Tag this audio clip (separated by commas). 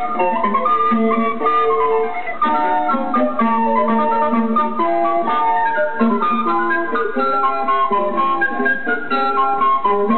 Wind instrument, Flute